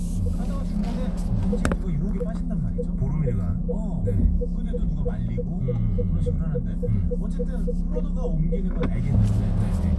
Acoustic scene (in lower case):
car